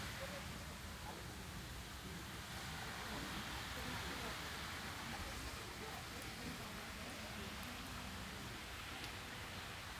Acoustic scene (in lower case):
park